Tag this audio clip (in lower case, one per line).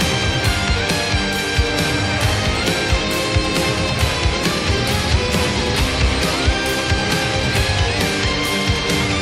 music